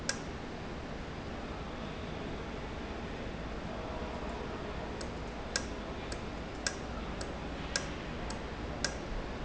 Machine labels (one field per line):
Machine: valve